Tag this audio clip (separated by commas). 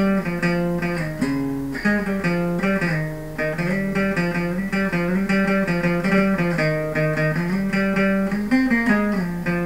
Guitar, Plucked string instrument, Music, Musical instrument